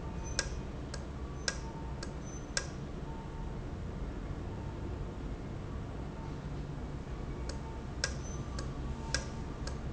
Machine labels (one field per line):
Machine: valve